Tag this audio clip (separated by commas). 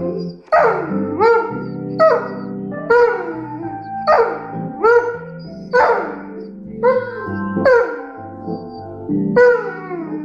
Blues, Music